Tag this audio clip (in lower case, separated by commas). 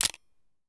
camera, mechanisms